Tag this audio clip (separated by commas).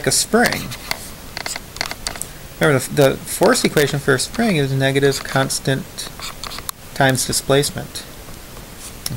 Speech, inside a small room